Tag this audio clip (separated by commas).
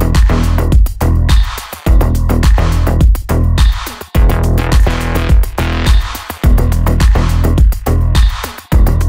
Music, Electronica